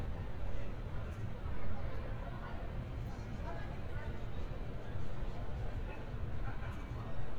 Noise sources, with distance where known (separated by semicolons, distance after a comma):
person or small group talking, far